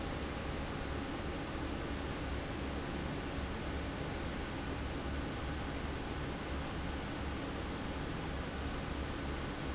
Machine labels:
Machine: fan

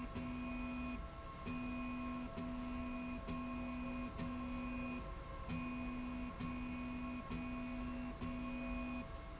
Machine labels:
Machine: slide rail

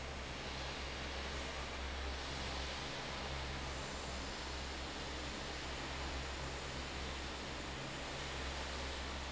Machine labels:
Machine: fan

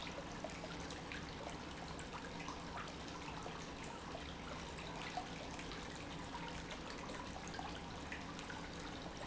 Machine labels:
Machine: pump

